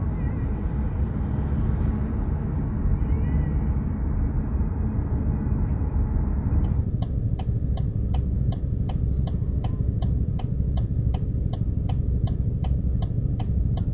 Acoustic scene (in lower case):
car